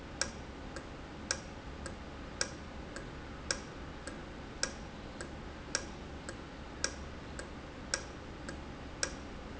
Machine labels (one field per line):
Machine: valve